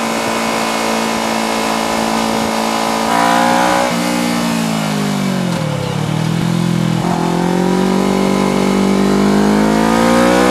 A loud engine speeds up and slows down